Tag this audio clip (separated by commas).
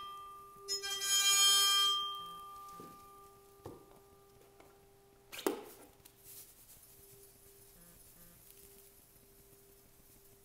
inside a small room